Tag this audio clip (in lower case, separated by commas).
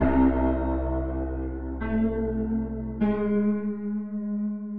keyboard (musical), piano, music, musical instrument